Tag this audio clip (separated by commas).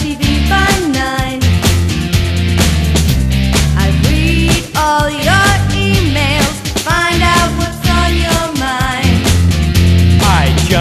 Music